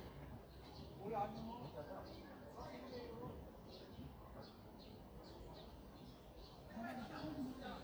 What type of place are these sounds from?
park